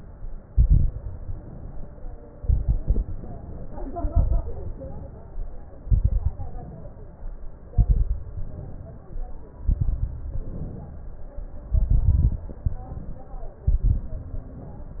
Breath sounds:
Inhalation: 1.04-2.28 s, 3.06-4.01 s, 4.71-5.75 s, 6.52-7.56 s, 8.23-9.27 s, 10.32-11.36 s, 12.52-13.57 s, 14.35-14.99 s
Exhalation: 0.45-0.98 s, 2.41-3.08 s, 4.01-4.67 s, 5.81-6.48 s, 7.71-8.24 s, 9.61-10.14 s, 11.71-12.45 s, 13.66-14.31 s
Crackles: 0.45-0.98 s, 2.41-3.08 s, 4.01-4.67 s, 5.81-6.48 s, 7.71-8.24 s, 9.61-10.14 s, 11.71-12.45 s, 13.66-14.31 s

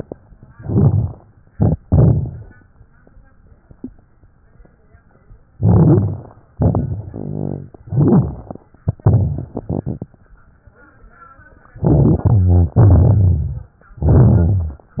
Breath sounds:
Inhalation: 0.46-1.13 s, 5.46-6.47 s, 7.81-8.79 s, 11.72-12.72 s, 13.98-14.97 s
Exhalation: 1.50-2.52 s, 6.54-7.65 s, 8.87-10.06 s, 12.75-13.74 s, 14.98-15.00 s
Crackles: 0.46-1.15 s, 1.54-2.50 s, 5.51-6.47 s, 6.54-7.69 s, 7.81-8.79 s, 8.87-10.06 s, 11.72-12.72 s, 12.75-13.74 s, 13.98-14.97 s, 14.98-15.00 s

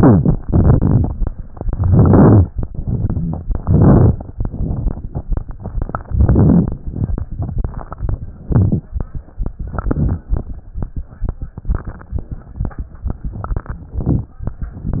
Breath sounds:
Inhalation: 0.46-1.08 s, 0.46-1.06 s, 1.82-2.45 s, 3.62-4.10 s, 6.11-6.79 s, 8.50-8.84 s, 9.83-10.25 s, 13.98-14.40 s
Exhalation: 2.73-3.40 s, 4.40-5.08 s
Crackles: 0.46-1.06 s, 1.82-2.45 s, 2.73-3.40 s, 3.63-4.14 s, 4.40-5.08 s, 6.15-6.75 s, 8.50-8.84 s, 9.83-10.25 s, 13.98-14.40 s

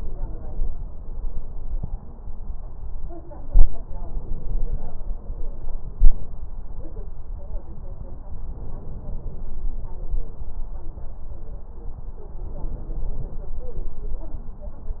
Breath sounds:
Inhalation: 3.80-5.11 s, 8.43-9.54 s, 12.46-13.57 s

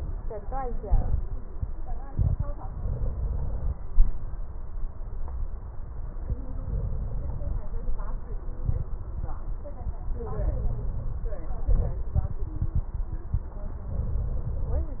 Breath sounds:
Inhalation: 2.63-3.77 s, 6.64-7.61 s, 10.20-11.17 s, 13.97-14.94 s
Exhalation: 8.62-9.30 s, 11.67-12.12 s
Crackles: 2.63-3.77 s, 6.64-7.61 s

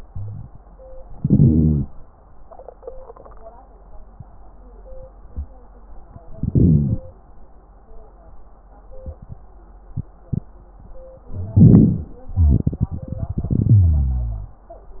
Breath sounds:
Inhalation: 1.15-1.85 s, 6.37-7.07 s, 11.34-12.13 s
Wheeze: 0.04-0.56 s, 13.79-14.59 s

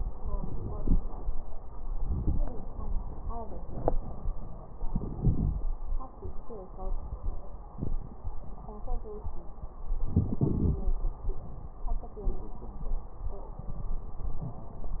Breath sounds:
Inhalation: 4.88-5.60 s, 10.11-11.11 s
Wheeze: 10.44-11.11 s
Crackles: 4.88-5.60 s

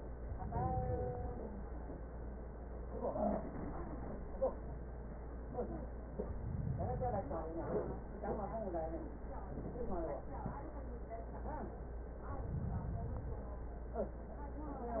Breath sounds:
Inhalation: 0.15-1.52 s, 6.18-7.55 s, 12.20-13.57 s

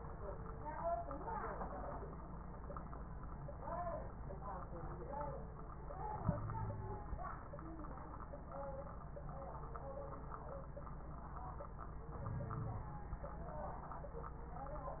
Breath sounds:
Inhalation: 12.18-12.93 s
Wheeze: 6.20-7.10 s
Crackles: 12.18-12.93 s

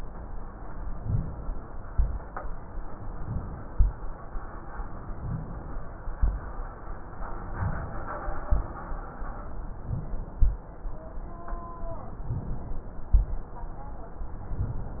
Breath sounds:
Inhalation: 0.93-1.61 s, 2.98-3.70 s, 5.12-5.86 s, 7.21-7.95 s, 9.60-10.34 s, 12.31-13.11 s
Exhalation: 1.92-2.37 s, 3.70-4.21 s, 6.17-6.64 s, 8.46-8.94 s, 10.38-10.85 s, 13.15-13.66 s

